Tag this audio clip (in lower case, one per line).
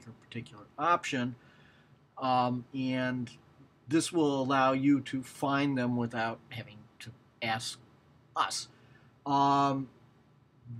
speech